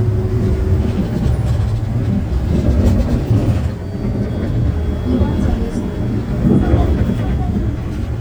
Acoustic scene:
bus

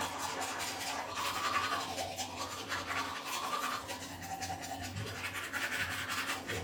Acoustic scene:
restroom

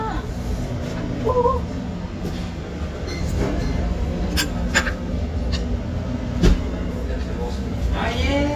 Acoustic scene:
restaurant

